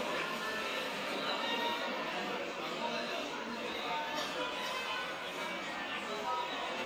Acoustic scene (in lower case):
cafe